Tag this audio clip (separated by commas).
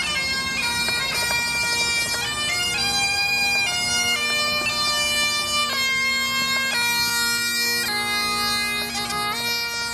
Bagpipes, Music